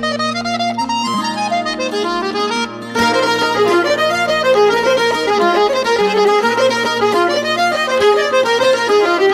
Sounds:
music
harmonica

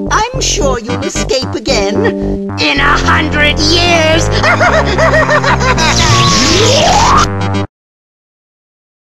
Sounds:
speech
music
background music

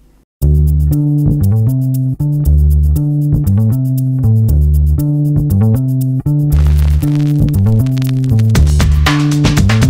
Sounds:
music

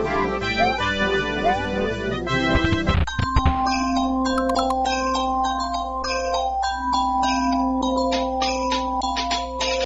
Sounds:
ding

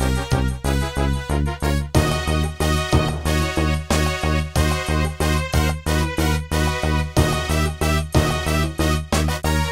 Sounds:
music

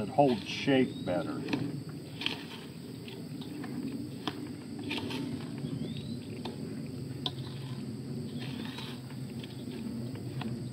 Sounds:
speech

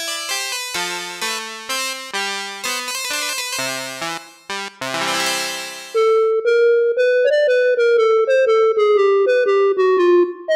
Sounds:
keyboard (musical)
synthesizer
musical instrument
electric piano
music

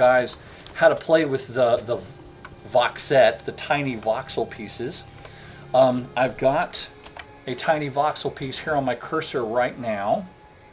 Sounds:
speech

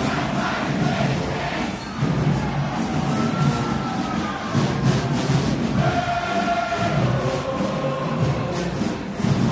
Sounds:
people marching

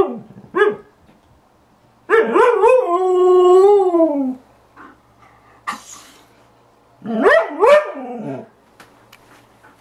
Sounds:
domestic animals
animal
dog

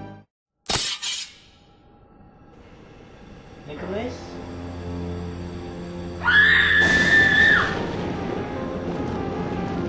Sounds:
speech
music

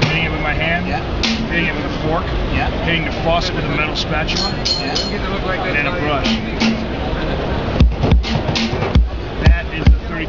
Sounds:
speech
percussion
music

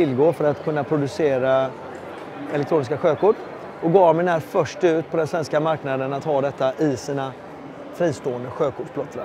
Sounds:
speech

